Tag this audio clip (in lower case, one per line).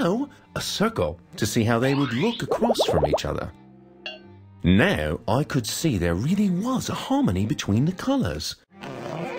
speech